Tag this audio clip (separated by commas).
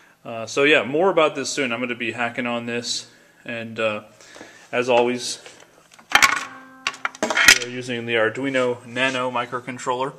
Speech